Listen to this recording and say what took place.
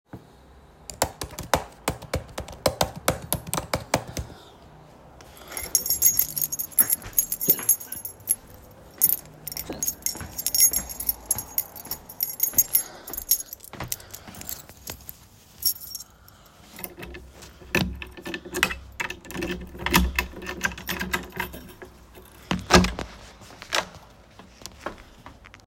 I was working with my laptop suddenly I thought of going for an grocery purchase so I have picked up key and then opened the door. Atlast closed the door and then gone to the grocery purchase.